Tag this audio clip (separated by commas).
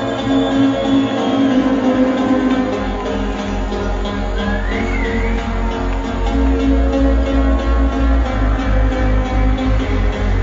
Cheering, Music